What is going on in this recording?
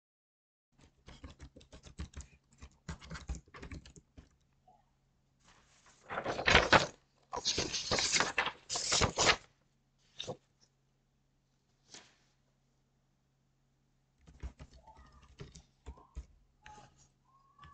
I typed on the keyboard of my laptop and moved some paper in between.